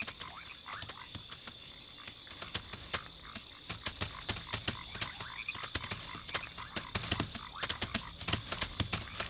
Rustling and clicking with distant frogs croaking and birds chirping